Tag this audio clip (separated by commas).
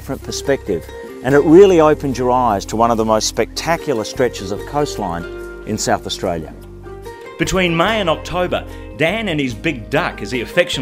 Music, Speech